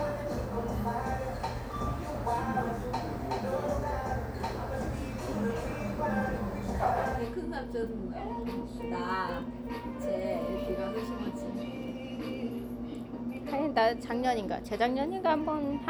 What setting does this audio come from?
cafe